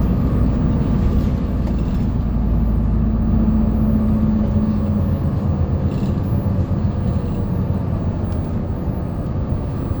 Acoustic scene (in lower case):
bus